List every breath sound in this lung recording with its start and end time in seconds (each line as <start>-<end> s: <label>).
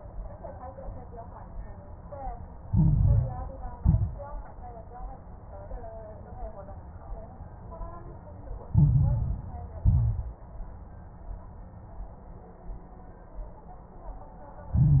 2.68-3.76 s: inhalation
2.68-3.76 s: crackles
3.78-4.41 s: exhalation
3.78-4.41 s: crackles
8.74-9.82 s: inhalation
8.74-9.82 s: crackles
9.82-10.37 s: exhalation
9.82-10.37 s: crackles
14.73-15.00 s: inhalation
14.73-15.00 s: crackles